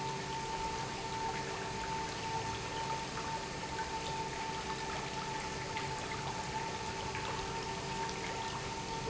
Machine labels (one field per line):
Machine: pump